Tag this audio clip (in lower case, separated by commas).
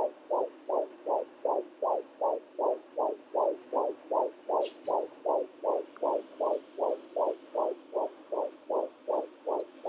heartbeat